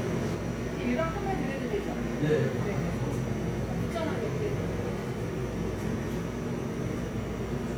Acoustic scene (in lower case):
cafe